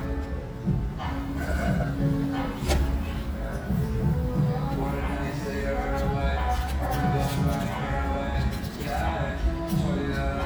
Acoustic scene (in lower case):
restaurant